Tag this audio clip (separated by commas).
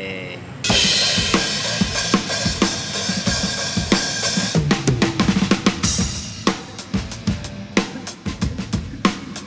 Percussion, Music, Wood block